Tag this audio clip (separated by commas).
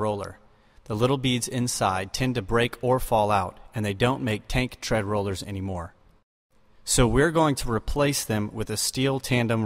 Speech